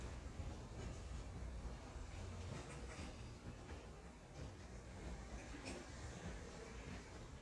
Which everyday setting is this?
residential area